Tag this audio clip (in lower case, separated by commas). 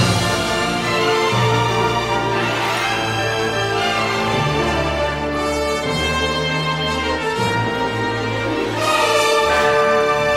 music